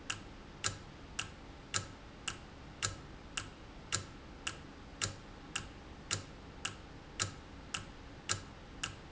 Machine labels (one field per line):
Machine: valve